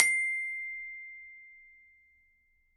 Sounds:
Musical instrument, Mallet percussion, Glockenspiel, Percussion, Music

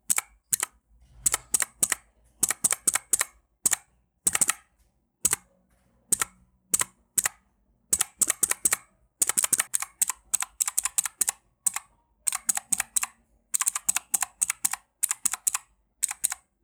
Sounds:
Typing, home sounds

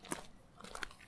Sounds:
Walk

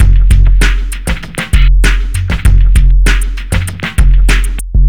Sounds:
Drum kit, Musical instrument, Percussion, Music

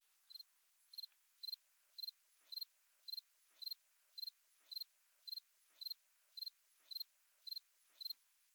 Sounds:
Wild animals, Cricket, Insect, Animal

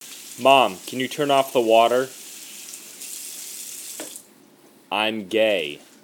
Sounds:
Speech, Human voice

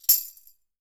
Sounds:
Tambourine, Music, Percussion, Musical instrument

